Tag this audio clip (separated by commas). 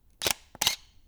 Camera, Mechanisms